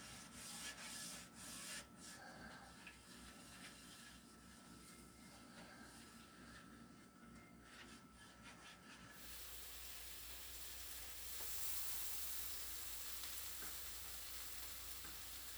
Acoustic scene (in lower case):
kitchen